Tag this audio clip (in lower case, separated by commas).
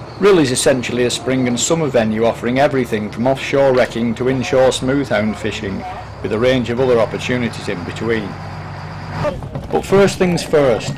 boat, speech, vehicle